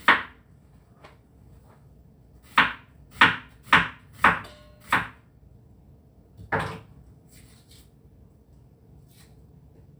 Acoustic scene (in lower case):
kitchen